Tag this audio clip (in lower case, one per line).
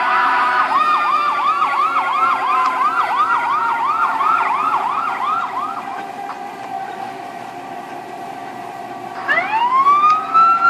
emergency vehicle